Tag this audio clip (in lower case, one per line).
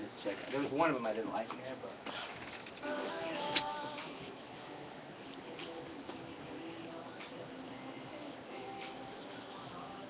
speech
music